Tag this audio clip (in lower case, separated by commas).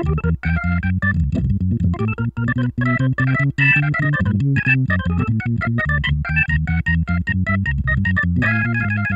keyboard (musical), piano, musical instrument, music